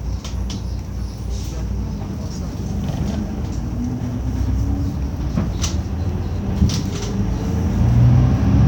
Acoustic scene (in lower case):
bus